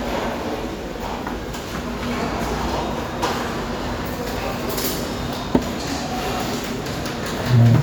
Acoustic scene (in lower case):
restaurant